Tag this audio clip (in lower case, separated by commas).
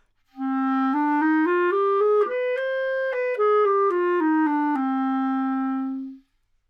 musical instrument, wind instrument, music